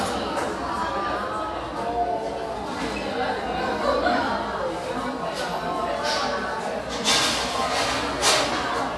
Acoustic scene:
cafe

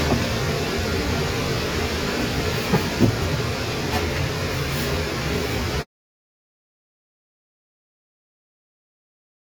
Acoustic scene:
kitchen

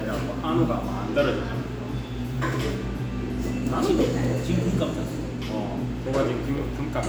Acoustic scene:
cafe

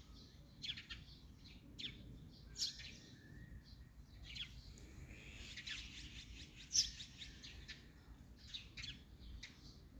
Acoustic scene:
park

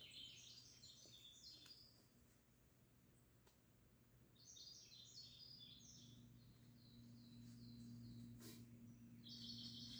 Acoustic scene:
park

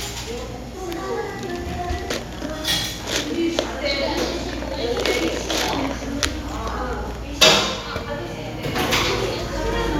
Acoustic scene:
cafe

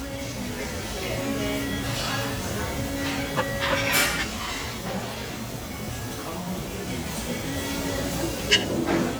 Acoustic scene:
restaurant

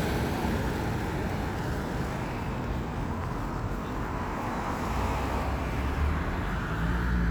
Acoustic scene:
street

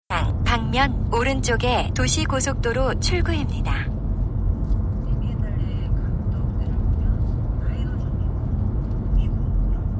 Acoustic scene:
car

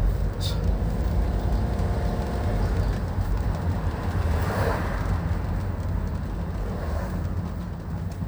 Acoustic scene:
car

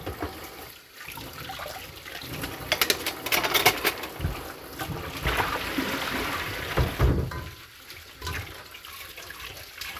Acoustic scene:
kitchen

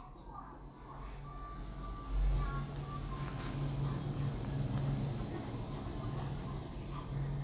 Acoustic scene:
elevator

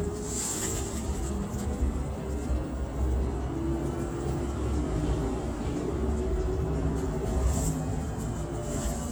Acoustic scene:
bus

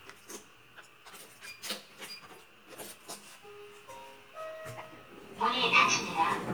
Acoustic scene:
elevator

